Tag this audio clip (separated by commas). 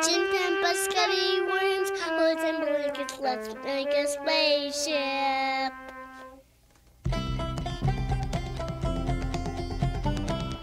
Music, Speech